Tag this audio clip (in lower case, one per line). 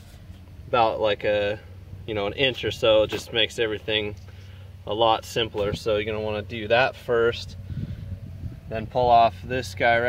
speech